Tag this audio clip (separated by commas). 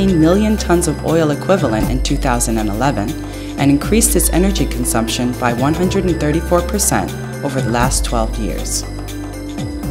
Music, Speech